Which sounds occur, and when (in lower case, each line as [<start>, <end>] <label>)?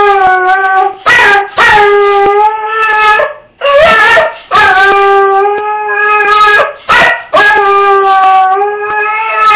[0.02, 9.55] dog